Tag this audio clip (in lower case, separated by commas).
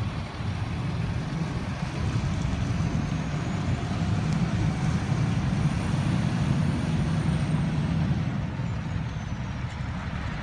vehicle